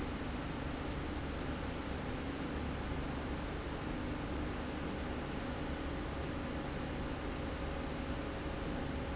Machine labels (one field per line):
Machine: slide rail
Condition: normal